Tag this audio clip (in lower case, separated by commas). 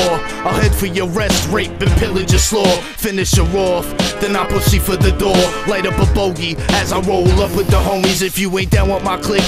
music